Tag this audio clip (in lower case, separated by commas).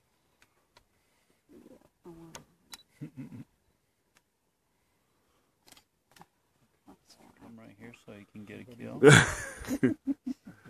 speech